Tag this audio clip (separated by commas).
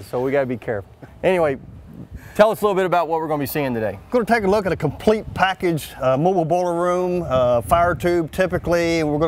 Speech